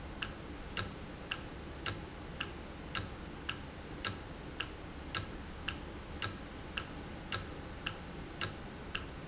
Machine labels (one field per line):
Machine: valve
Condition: normal